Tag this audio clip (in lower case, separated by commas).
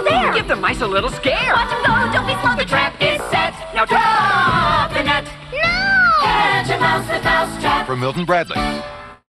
music, speech